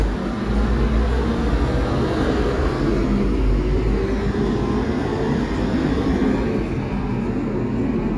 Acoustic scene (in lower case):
residential area